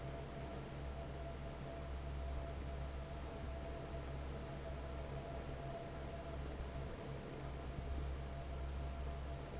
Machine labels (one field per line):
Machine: fan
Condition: normal